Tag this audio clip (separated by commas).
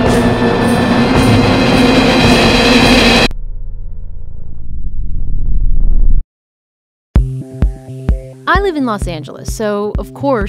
Music, Speech